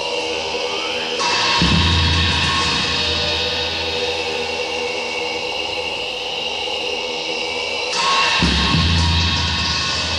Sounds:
mantra, music

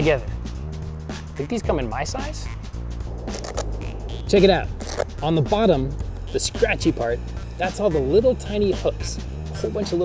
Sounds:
speech, music

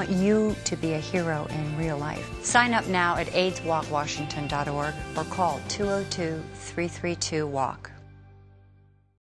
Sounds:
speech, music

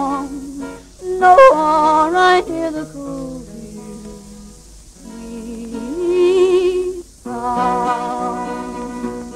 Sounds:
music, yodeling

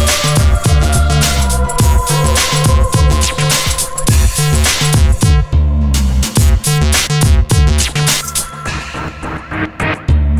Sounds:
music, sampler

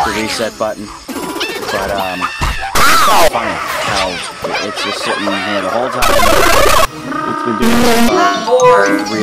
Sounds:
speech, music

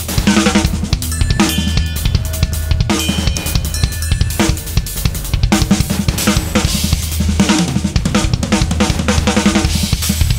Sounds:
percussion, music

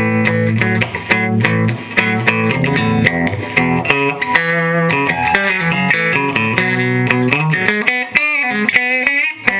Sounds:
guitar, musical instrument, plucked string instrument, strum, music

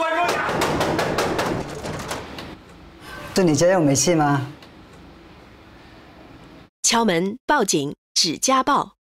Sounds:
speech

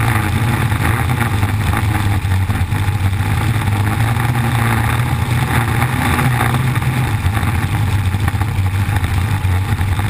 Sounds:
vehicle

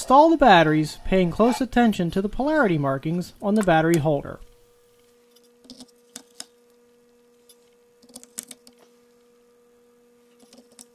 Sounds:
monologue, speech

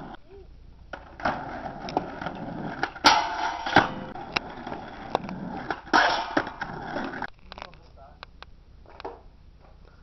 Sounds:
speech

